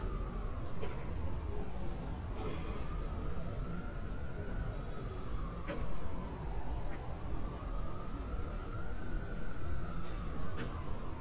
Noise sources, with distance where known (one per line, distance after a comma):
non-machinery impact
siren, far
unidentified human voice, near